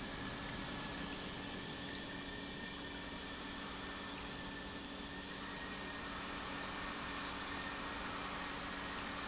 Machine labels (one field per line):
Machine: pump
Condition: normal